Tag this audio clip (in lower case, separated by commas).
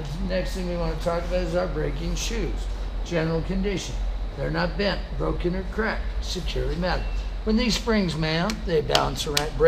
speech